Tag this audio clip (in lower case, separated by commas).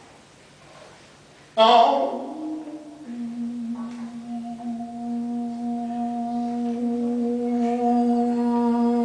mantra